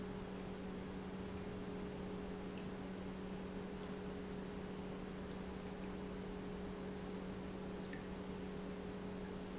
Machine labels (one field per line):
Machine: pump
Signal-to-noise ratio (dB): 6 dB